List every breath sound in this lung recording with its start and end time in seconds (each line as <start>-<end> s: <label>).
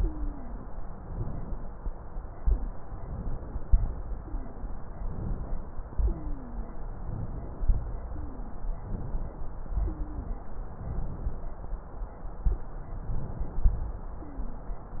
0.00-0.70 s: wheeze
0.00-1.00 s: exhalation
1.06-1.97 s: inhalation
1.99-2.90 s: exhalation
2.92-3.63 s: inhalation
3.63-4.81 s: exhalation
4.17-4.73 s: wheeze
4.99-5.92 s: inhalation
5.96-7.04 s: exhalation
5.98-6.79 s: wheeze
7.04-8.03 s: inhalation
8.08-8.80 s: wheeze
8.08-8.86 s: exhalation
8.90-9.72 s: inhalation
9.73-10.74 s: exhalation
9.81-10.53 s: wheeze
10.76-11.65 s: inhalation
12.94-13.81 s: inhalation
13.81-15.00 s: exhalation
14.25-14.80 s: wheeze